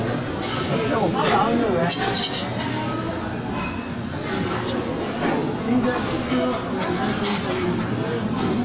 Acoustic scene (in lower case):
crowded indoor space